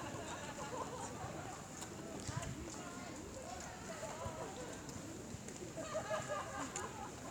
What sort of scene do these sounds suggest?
park